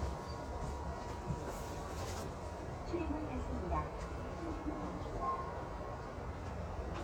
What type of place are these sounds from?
subway train